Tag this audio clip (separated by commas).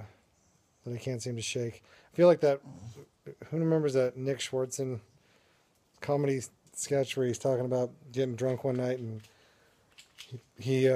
Speech